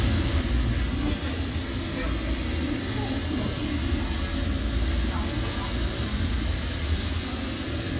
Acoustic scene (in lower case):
restaurant